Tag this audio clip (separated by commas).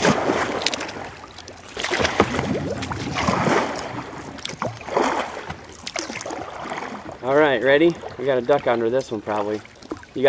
Vehicle, Boat, Speech, Rowboat